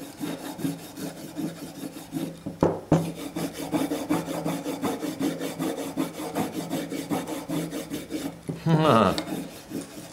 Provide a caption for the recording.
Filing wood followed a laughter